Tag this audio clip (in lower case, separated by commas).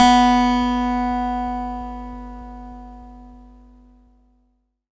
acoustic guitar, musical instrument, guitar, plucked string instrument, music